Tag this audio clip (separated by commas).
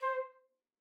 Wind instrument, Musical instrument, Music